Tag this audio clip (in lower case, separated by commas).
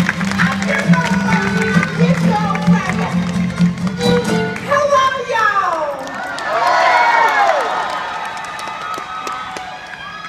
speech, music